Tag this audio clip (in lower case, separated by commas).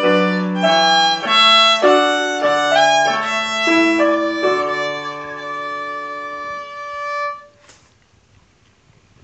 violin, musical instrument, music